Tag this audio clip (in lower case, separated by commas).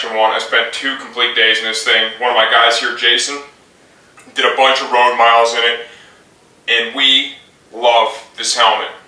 speech